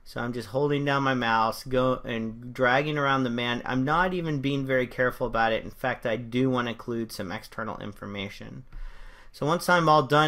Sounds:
speech

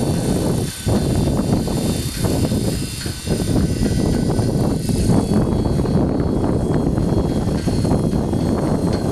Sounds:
wind noise (microphone)

